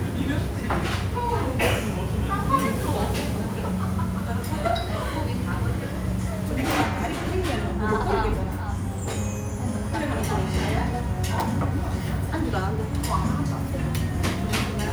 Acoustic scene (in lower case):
restaurant